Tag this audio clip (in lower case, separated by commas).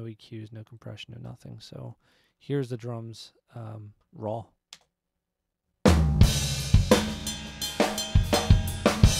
music, speech